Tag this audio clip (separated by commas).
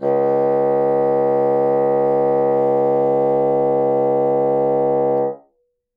Musical instrument, woodwind instrument, Music